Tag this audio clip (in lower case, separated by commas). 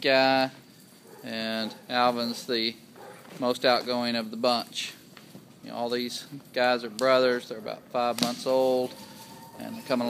animal, pets, speech